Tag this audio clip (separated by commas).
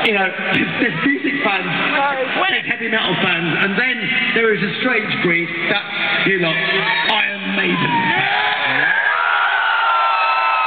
Speech, Male speech